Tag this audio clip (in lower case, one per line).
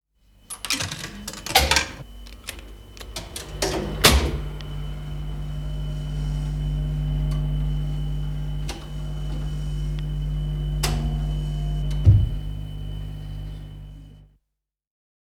coin (dropping)
home sounds